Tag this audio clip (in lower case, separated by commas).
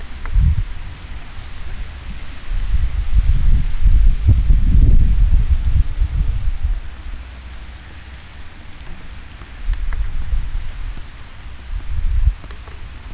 wind